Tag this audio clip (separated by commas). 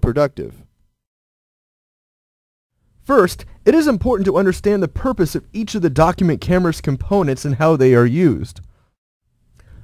Speech